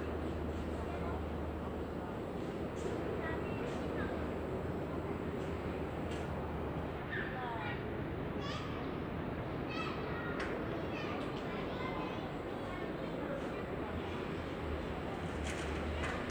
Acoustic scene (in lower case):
residential area